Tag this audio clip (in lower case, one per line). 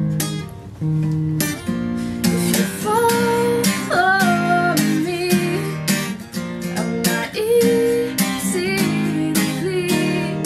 music